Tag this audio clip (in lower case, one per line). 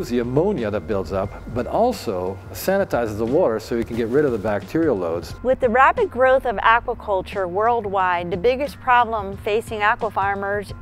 music
speech